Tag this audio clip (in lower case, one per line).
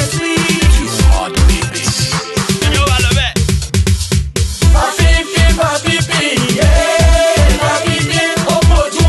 funk
music